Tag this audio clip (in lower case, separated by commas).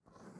writing, domestic sounds